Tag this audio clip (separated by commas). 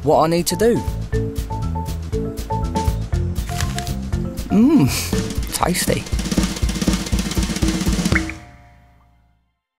Speech, Music